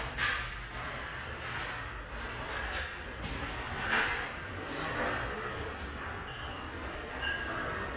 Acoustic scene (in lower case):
restaurant